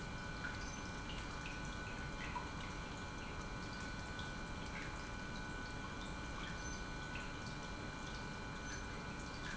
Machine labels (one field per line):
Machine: pump